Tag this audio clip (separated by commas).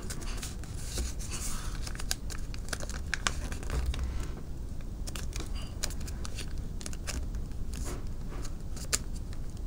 Crumpling, inside a small room